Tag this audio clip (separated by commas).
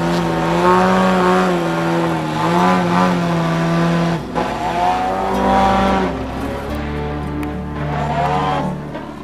Aircraft